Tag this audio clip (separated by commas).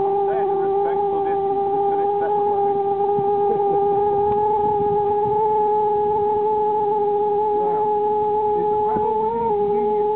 Speech